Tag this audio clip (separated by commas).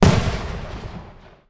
Explosion, Fireworks